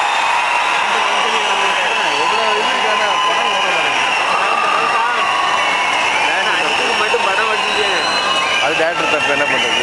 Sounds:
Speech

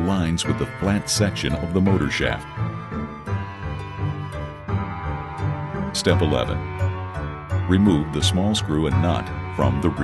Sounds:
Music, Speech

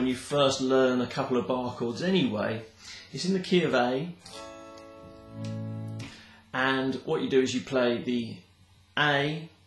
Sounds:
Electric guitar, Plucked string instrument, Guitar, Music, Musical instrument, Speech, Strum

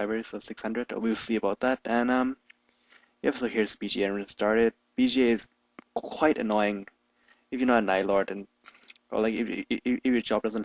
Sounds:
Speech

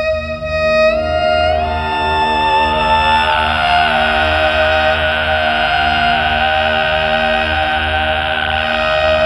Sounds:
Music

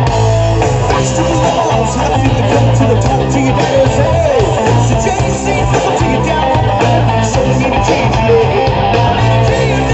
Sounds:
Rock and roll, Music, Singing

